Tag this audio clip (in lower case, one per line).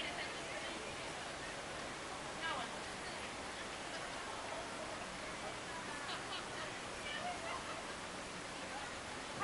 speech